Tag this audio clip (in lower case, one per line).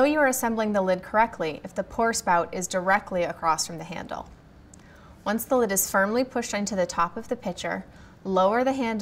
speech